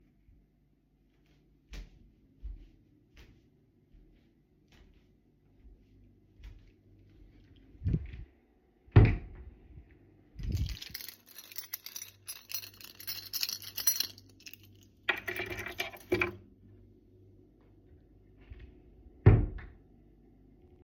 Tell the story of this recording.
I went to the wardobe. Then put my keys from my coat to the shelf in it and at the end closed it